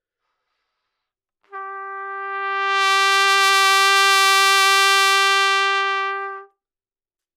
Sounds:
trumpet
music
brass instrument
musical instrument

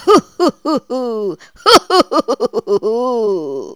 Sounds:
human voice
laughter

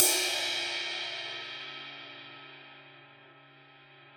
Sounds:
crash cymbal
musical instrument
cymbal
music
percussion

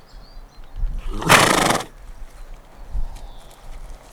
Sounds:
animal
livestock

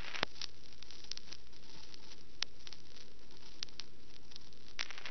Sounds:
crackle

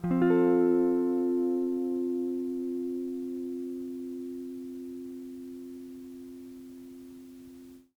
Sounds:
guitar
musical instrument
plucked string instrument
music

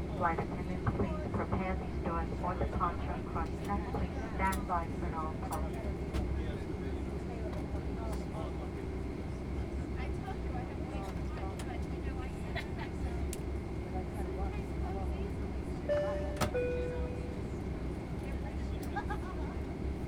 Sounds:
airplane
aircraft
vehicle

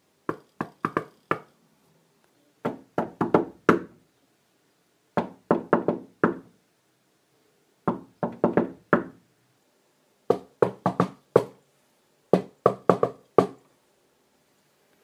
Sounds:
knock
home sounds
door

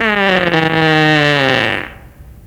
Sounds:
fart

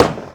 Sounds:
tools
hammer

